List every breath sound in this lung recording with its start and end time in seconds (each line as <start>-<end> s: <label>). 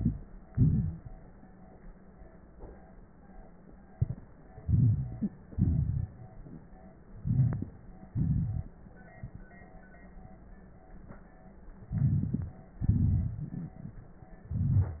0.00-0.47 s: inhalation
0.00-0.47 s: crackles
0.49-1.33 s: exhalation
0.49-1.33 s: crackles
4.53-5.47 s: inhalation
4.61-5.28 s: wheeze
5.46-6.74 s: exhalation
5.46-6.74 s: crackles
7.05-8.10 s: inhalation
7.19-7.73 s: wheeze
8.09-8.77 s: exhalation
8.09-8.77 s: crackles
11.81-12.66 s: inhalation
11.81-12.66 s: crackles
12.68-14.31 s: exhalation
12.68-14.31 s: crackles
14.46-15.00 s: inhalation
14.46-15.00 s: crackles